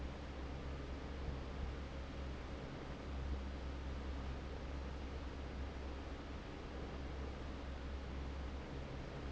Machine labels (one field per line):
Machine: fan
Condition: normal